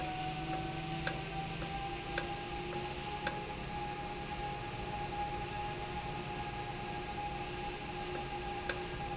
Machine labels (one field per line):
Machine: valve